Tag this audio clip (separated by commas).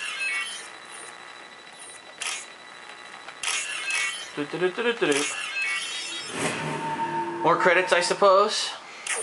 Speech